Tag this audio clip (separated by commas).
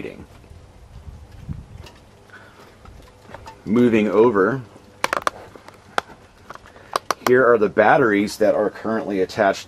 Speech